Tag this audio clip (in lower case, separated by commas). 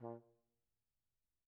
music, musical instrument, brass instrument